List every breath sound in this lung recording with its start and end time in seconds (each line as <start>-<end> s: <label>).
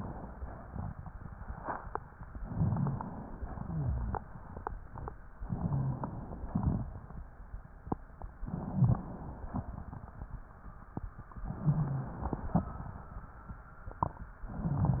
2.37-3.49 s: inhalation
2.45-2.98 s: rhonchi
3.62-4.25 s: exhalation
3.62-4.25 s: rhonchi
5.37-6.49 s: inhalation
5.62-6.15 s: rhonchi
6.51-6.91 s: exhalation
8.43-9.54 s: inhalation
8.67-9.09 s: rhonchi
11.42-12.54 s: inhalation
11.61-12.16 s: rhonchi